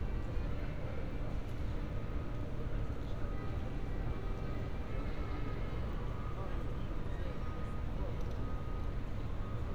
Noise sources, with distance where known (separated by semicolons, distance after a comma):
unidentified alert signal, far; music from a fixed source, far